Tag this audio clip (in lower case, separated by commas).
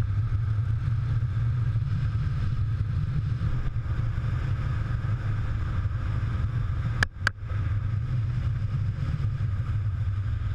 vehicle